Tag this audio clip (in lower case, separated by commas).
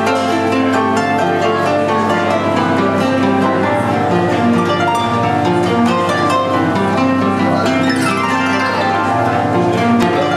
bowed string instrument, harp, music, inside a public space